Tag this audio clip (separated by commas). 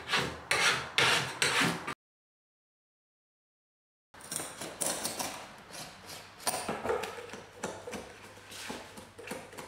Tools, inside a small room